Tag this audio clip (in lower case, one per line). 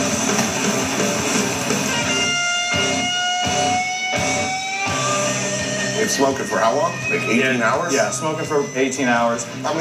speech
funk
music
pop music
heavy metal